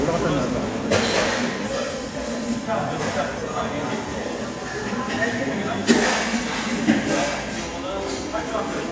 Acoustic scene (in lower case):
restaurant